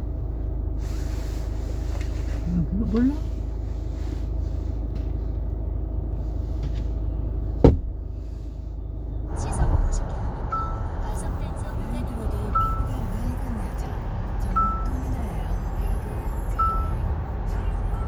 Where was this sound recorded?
in a car